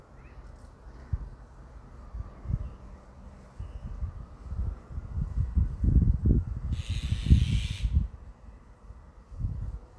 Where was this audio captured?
in a residential area